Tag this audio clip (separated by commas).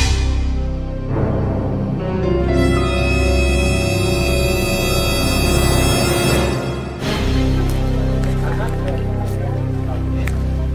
outside, rural or natural, Music, Speech